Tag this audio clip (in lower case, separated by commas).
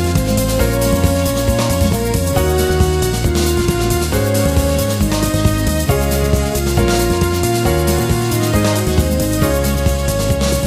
music